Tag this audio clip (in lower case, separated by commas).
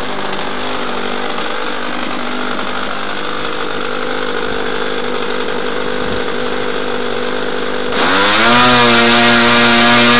revving, idling, engine, medium engine (mid frequency)